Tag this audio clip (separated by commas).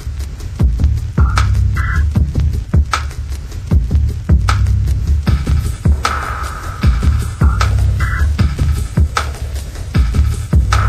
Music